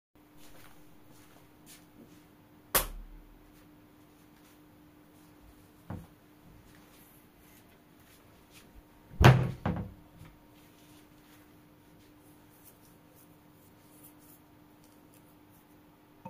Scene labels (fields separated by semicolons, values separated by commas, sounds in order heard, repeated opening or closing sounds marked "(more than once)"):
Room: bedroom; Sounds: light switch, footsteps, wardrobe or drawer